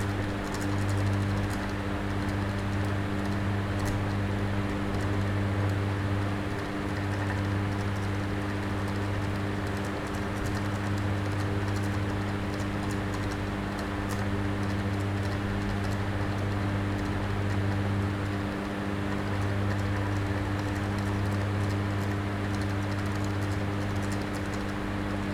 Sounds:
mechanical fan
mechanisms

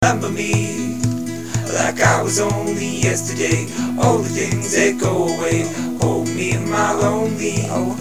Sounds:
human voice
musical instrument
acoustic guitar
music
guitar
plucked string instrument

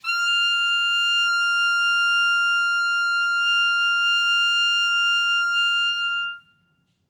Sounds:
musical instrument
woodwind instrument
music

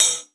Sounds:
musical instrument
percussion
hi-hat
music
cymbal

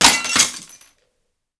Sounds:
shatter
glass

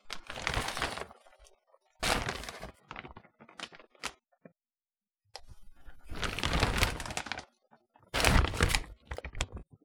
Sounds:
crumpling

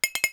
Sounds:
clink
glass

